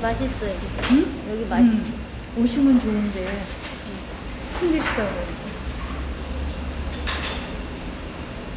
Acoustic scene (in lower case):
restaurant